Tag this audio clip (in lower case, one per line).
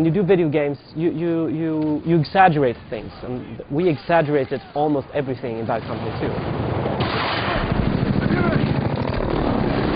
speech